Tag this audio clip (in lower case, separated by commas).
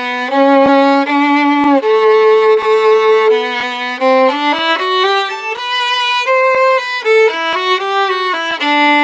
bowed string instrument, fiddle